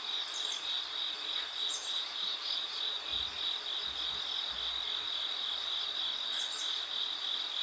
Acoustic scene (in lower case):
park